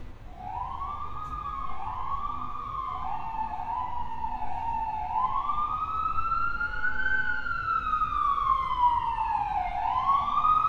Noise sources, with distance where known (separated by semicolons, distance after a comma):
siren